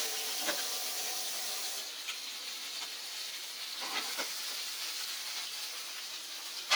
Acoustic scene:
kitchen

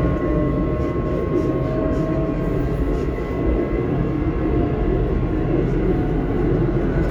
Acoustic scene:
subway train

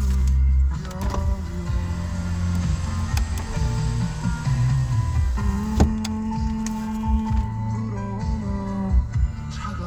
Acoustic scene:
car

